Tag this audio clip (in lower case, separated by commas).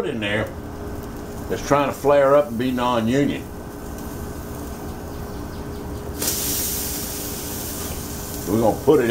outside, urban or man-made, speech